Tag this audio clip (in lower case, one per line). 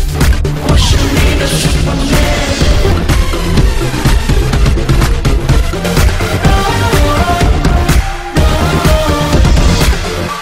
music